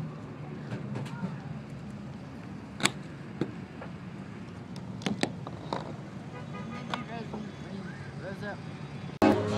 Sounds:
Speech, Car, outside, urban or man-made, Music, Vehicle

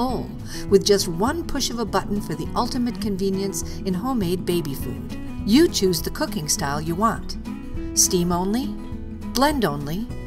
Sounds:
Music, Speech

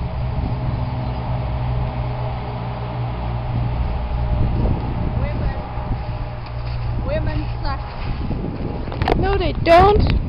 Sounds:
Speech, outside, rural or natural

